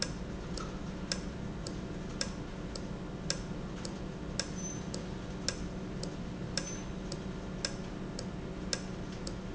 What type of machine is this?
valve